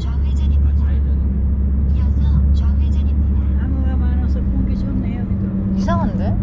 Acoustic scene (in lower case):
car